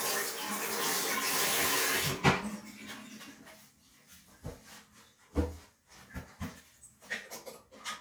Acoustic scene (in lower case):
restroom